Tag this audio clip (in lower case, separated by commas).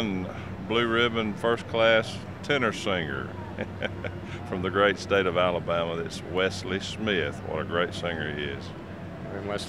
speech